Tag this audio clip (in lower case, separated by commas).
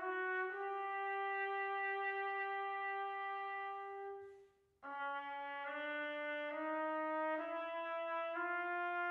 classical music, trumpet, music, trombone